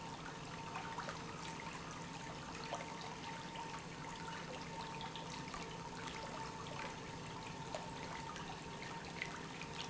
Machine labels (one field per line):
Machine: pump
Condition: normal